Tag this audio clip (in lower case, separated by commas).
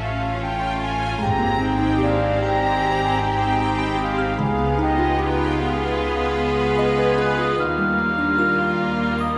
music